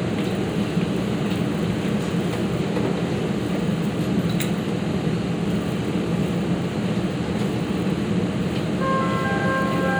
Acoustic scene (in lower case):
subway train